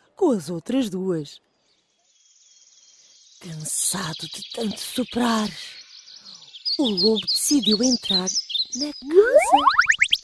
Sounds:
speech

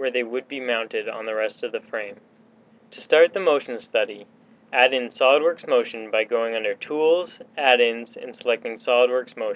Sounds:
speech

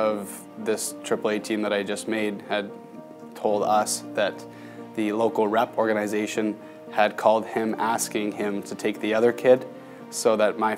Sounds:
music, speech

